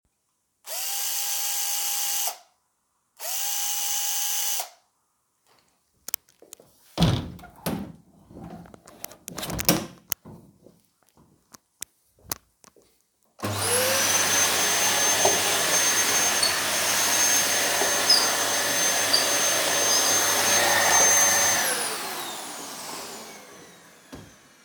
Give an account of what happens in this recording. I was using the drill to drill something, then closed the balcony door then started the vacuum cleaner to clean.